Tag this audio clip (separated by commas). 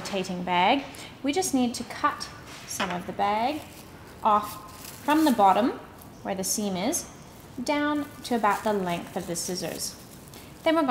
Speech